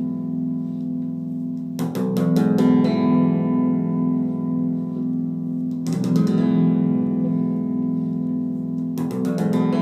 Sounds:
musical instrument, strum, guitar, music, plucked string instrument

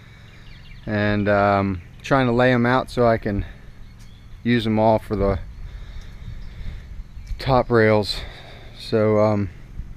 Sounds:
speech

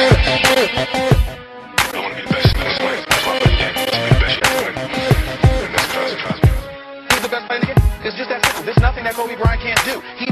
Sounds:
music

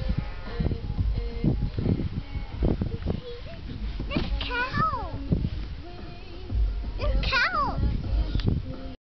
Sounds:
speech, music

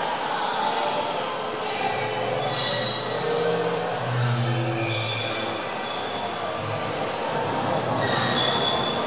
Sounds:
truck, vehicle, music

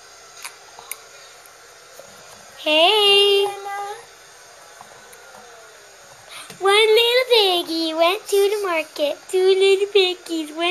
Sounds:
inside a small room, speech, child speech

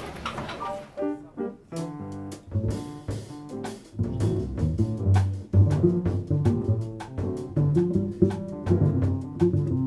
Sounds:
music

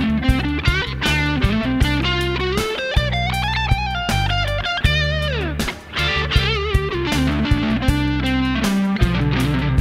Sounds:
music, plucked string instrument, playing electric guitar, guitar, electric guitar, musical instrument

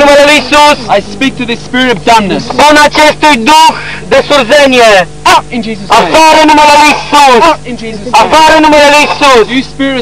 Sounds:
male speech, speech

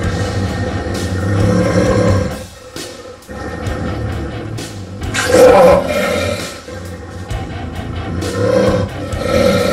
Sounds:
dog growling

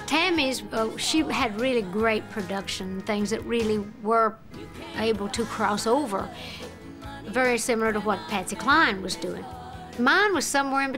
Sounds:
music, speech, country

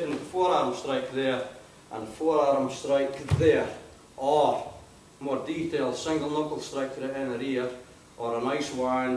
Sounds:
speech

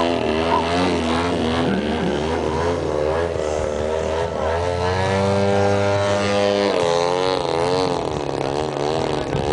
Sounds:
speech

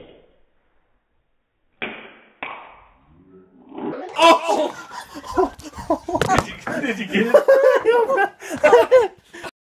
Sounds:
speech, ping

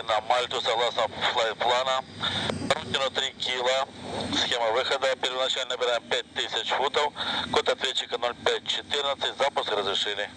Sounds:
speech

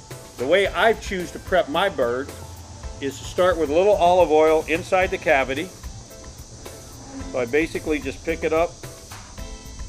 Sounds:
speech, music

